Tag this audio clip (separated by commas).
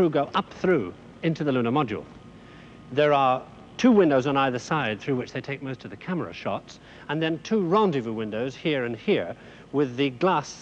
Speech